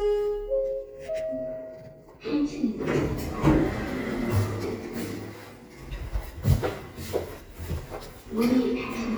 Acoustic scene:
elevator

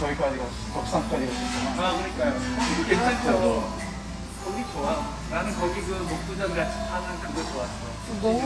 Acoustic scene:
restaurant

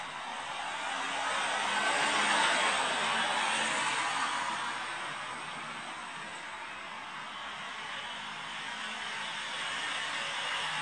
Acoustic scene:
street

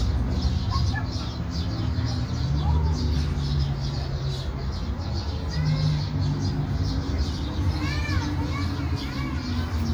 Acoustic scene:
park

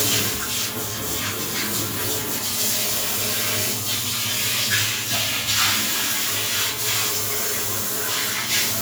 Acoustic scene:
restroom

